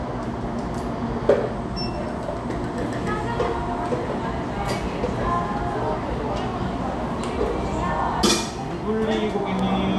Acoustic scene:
cafe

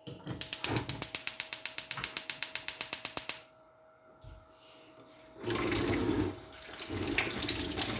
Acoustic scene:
kitchen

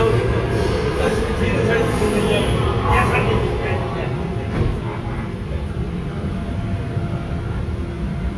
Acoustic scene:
subway train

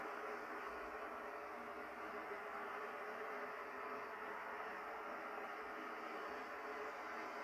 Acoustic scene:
elevator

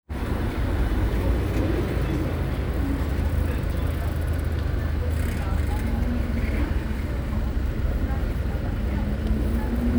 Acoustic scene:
street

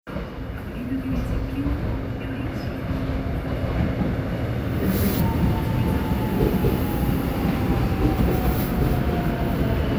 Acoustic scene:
subway station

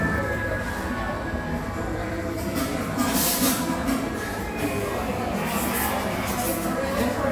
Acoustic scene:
cafe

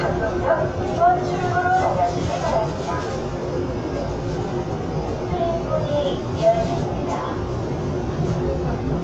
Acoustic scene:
subway train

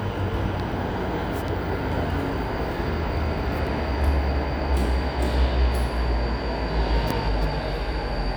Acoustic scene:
subway station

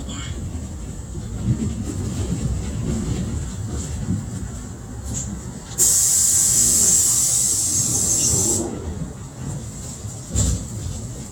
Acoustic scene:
bus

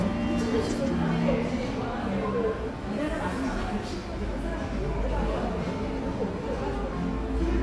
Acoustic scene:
cafe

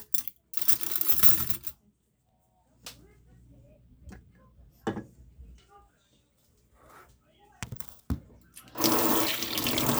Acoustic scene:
kitchen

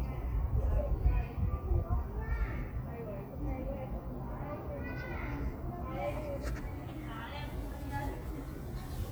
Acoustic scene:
residential area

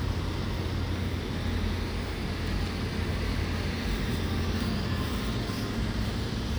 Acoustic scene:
residential area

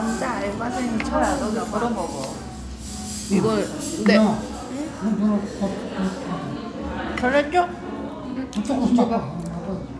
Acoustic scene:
restaurant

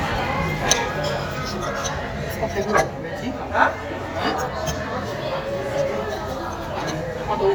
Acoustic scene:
restaurant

